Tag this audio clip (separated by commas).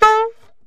Musical instrument, Music, woodwind instrument